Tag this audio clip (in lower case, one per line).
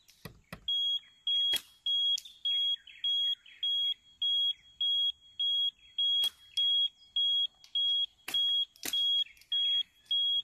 smoke alarm